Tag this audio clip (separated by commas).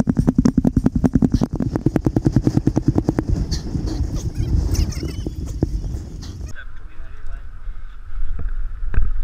outside, urban or man-made, Speech